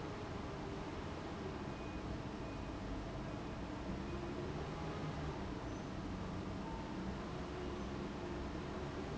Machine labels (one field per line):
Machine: fan